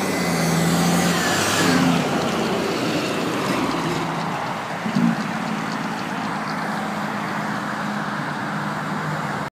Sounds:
truck, vehicle

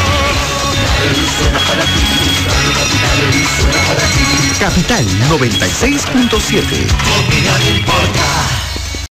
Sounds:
music, speech

